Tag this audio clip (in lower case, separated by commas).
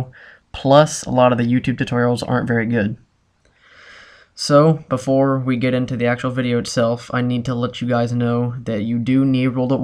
speech